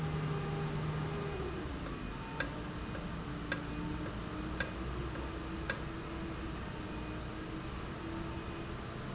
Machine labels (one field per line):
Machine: valve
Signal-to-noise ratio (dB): -6 dB